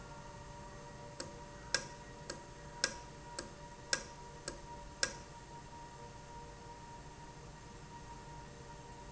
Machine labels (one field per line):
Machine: valve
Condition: normal